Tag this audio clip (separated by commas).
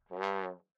Musical instrument, Music, Brass instrument